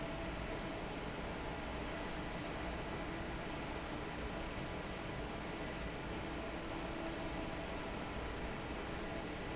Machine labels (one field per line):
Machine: fan